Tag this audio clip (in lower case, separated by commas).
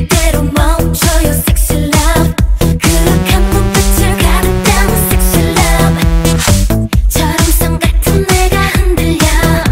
music